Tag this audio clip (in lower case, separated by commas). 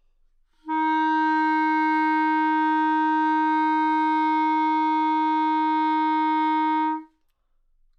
musical instrument, music, wind instrument